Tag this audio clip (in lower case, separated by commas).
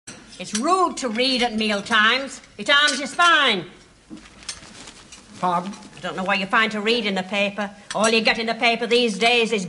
speech